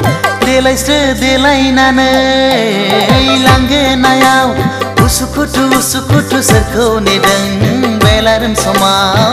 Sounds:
Music

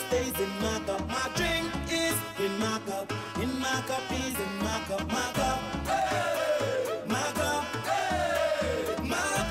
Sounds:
Music

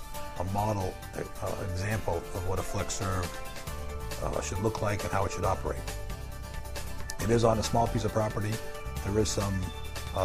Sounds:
Speech, Music

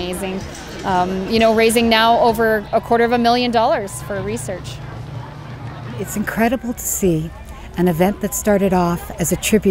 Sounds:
Speech

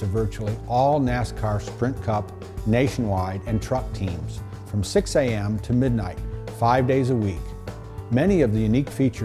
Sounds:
Music, Speech

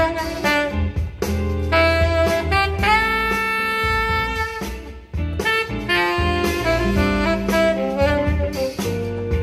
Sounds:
playing saxophone

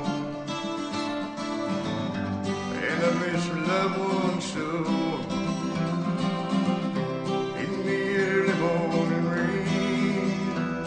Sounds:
Music

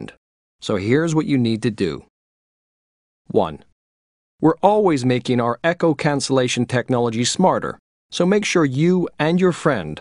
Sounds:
Speech

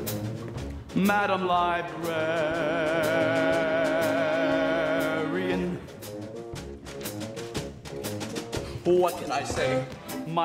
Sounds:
Music

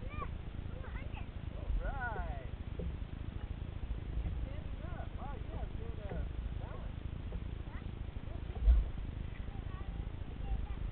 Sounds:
kayak, Boat, Speech, Vehicle

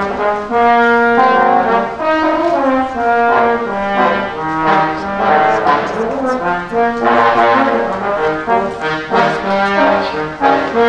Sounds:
Brass instrument, inside a large room or hall, Orchestra, Trombone, Musical instrument, Music

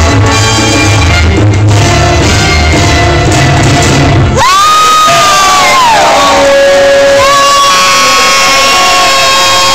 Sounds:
inside a large room or hall, Music, Crowd

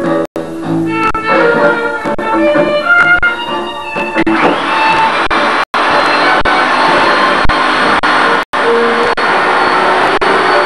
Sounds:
Music

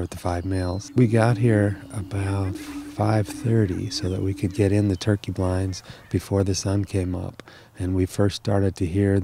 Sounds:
Speech

